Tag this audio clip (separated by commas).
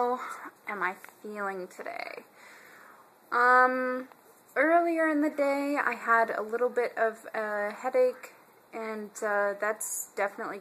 Speech